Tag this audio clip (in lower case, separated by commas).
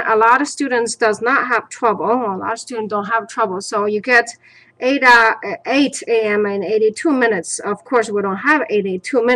speech